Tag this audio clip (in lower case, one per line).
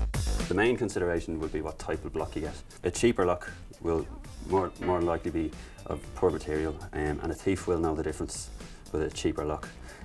speech
music